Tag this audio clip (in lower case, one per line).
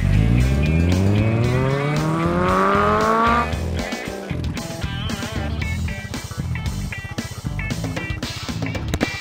music